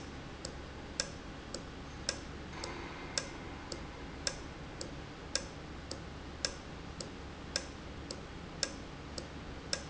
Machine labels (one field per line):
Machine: valve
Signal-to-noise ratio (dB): 0 dB